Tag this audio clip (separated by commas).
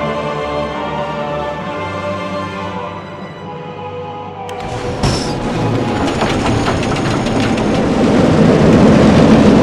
roller coaster running